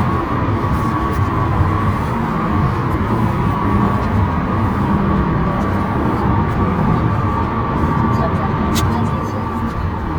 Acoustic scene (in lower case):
car